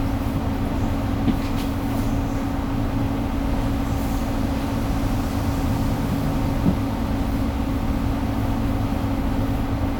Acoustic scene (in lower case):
bus